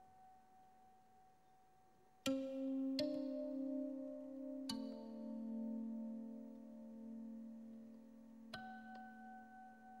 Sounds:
Music

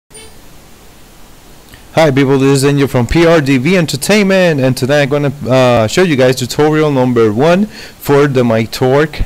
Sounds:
Speech, Pink noise

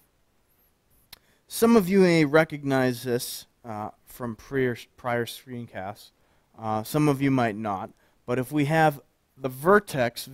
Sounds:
Speech

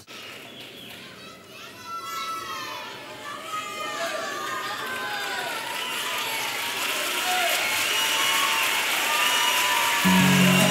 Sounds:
Speech

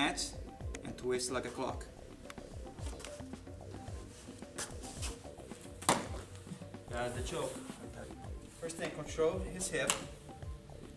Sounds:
Music, Speech

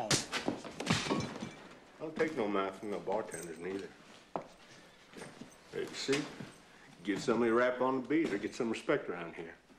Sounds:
Slap, Speech

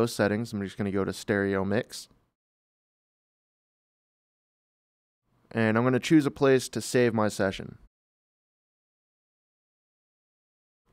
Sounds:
Speech

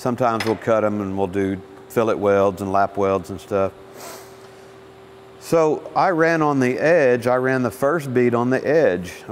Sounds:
arc welding

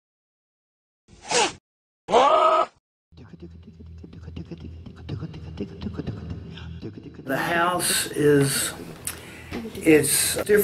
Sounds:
Music, inside a small room, Speech

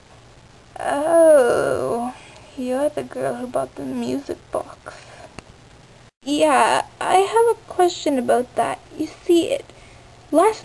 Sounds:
Speech

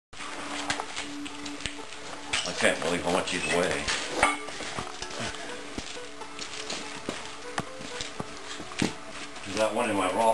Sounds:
inside a large room or hall, Speech, Music

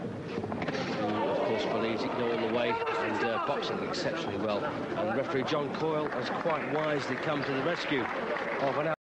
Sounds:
Speech

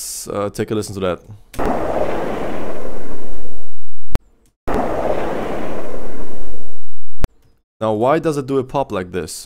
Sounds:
Speech

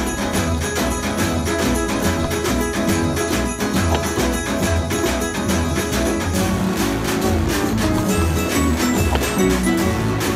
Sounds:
Music, Steelpan

